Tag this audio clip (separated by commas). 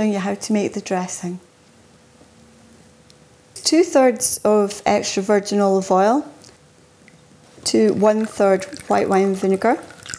Speech